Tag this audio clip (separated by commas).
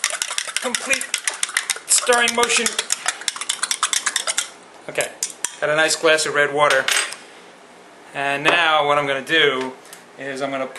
dishes, pots and pans